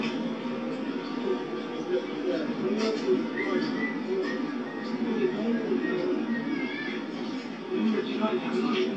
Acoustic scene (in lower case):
park